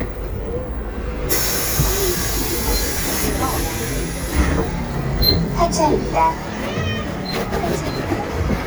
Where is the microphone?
on a bus